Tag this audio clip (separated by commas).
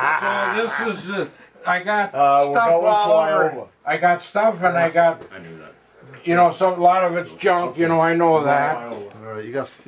Speech